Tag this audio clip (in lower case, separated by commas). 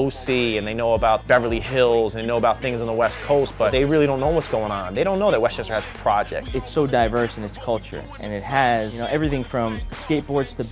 music, speech